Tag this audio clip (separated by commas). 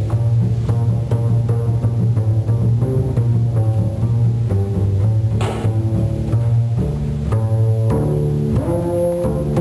playing double bass